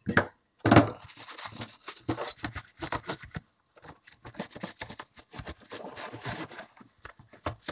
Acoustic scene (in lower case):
kitchen